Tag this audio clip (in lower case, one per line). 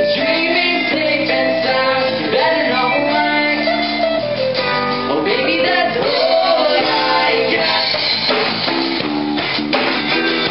music